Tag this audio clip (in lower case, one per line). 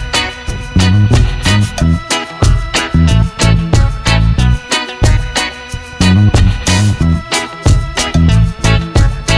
music